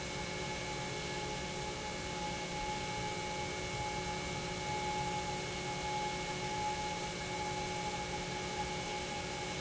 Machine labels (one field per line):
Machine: pump